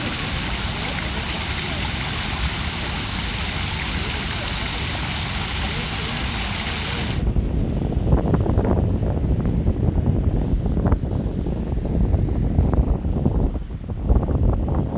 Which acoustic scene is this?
park